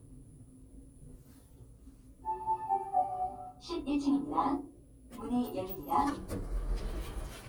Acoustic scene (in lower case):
elevator